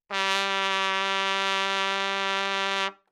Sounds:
Musical instrument, Music, Trumpet, Brass instrument

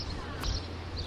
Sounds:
Wild animals, Animal, Bird

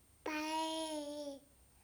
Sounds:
Speech, Human voice

